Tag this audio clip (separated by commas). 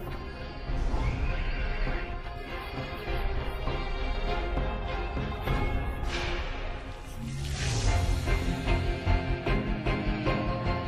Music